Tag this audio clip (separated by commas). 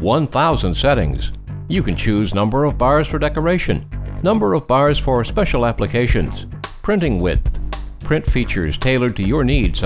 Music, Speech